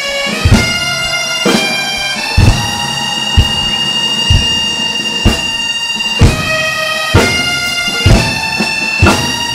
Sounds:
Drum kit, Drum, Music

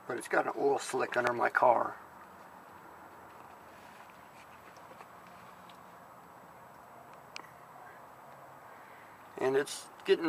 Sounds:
Speech

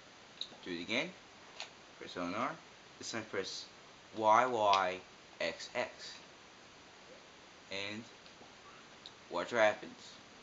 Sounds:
Speech

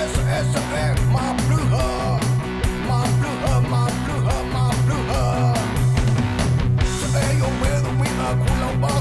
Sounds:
Music

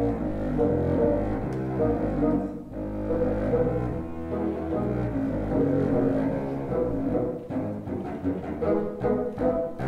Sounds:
Music, inside a large room or hall

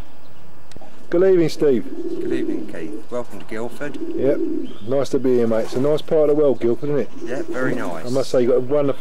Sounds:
Bird vocalization, Bird, Pigeon, Coo, tweet

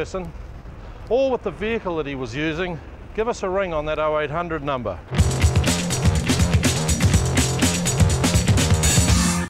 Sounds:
Music, Speech

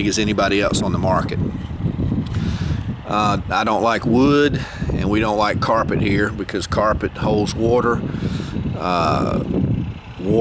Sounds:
Vehicle, Speech

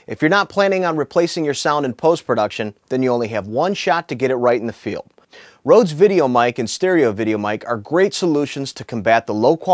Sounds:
Speech

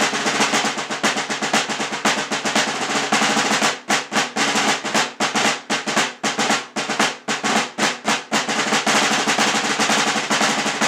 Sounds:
playing snare drum

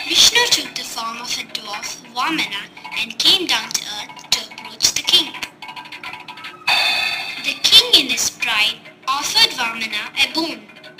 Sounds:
Music, Speech

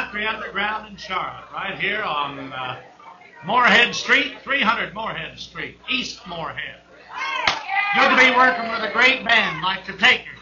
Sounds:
Speech

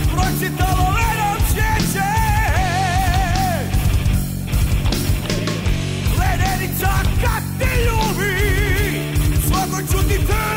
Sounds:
Music

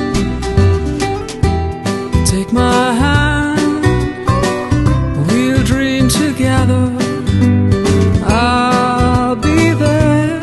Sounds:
Soul music, Music

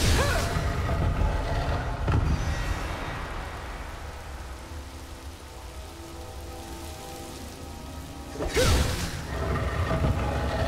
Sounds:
Music

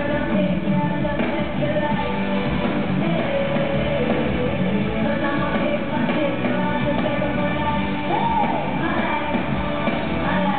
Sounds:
Music

